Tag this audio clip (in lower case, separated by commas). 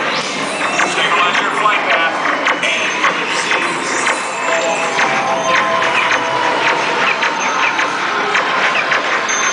speech, music